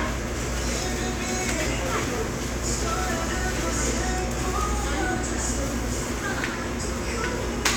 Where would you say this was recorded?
in a restaurant